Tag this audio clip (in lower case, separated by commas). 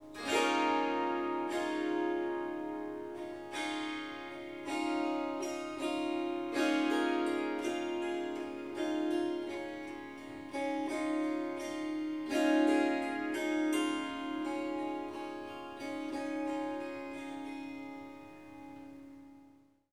musical instrument, music, harp